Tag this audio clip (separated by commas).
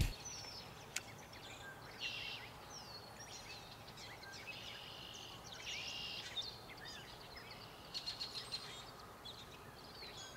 Environmental noise